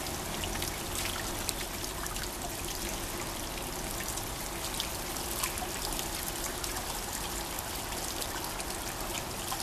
Water trickling